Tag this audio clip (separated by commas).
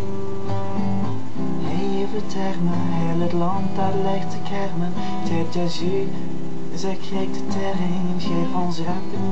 Music